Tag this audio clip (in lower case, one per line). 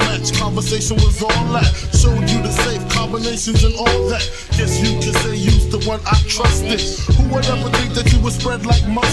music